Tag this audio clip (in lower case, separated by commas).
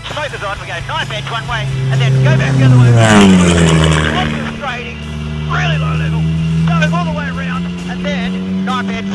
music, vehicle, accelerating, speech